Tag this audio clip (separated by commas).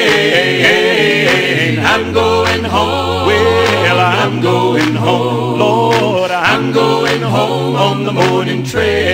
Reggae, Music